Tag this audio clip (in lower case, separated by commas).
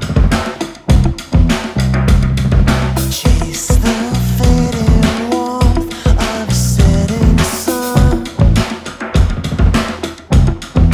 music